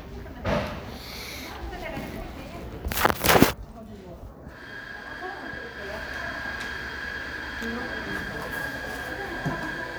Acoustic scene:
crowded indoor space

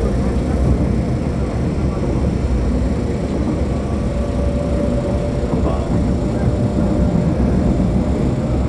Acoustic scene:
subway train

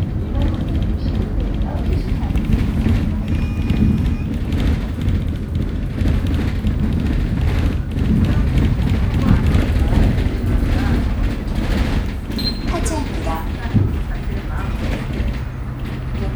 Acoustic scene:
bus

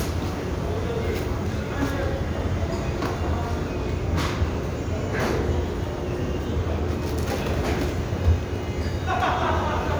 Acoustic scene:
restaurant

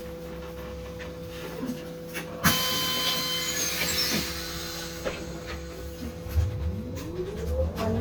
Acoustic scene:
bus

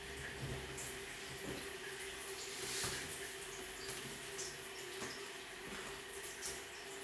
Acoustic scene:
restroom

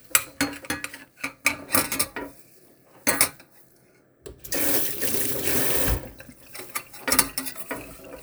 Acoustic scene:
kitchen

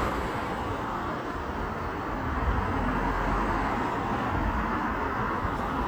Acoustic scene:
street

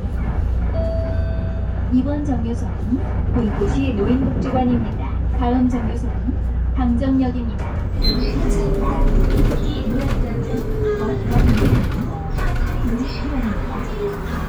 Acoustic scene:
bus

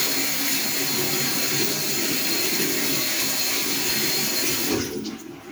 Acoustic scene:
restroom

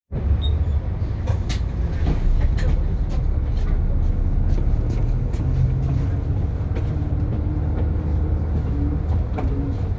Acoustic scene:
bus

